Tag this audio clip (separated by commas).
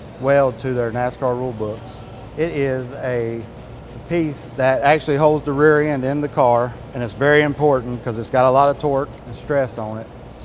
Music, Speech